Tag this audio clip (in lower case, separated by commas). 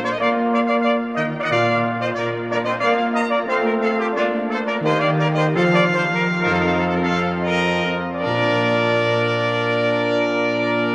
trombone, brass instrument, trumpet